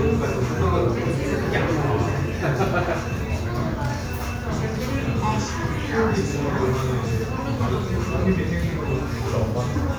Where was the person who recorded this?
in a crowded indoor space